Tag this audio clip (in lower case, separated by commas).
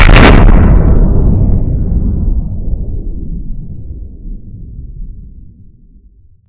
explosion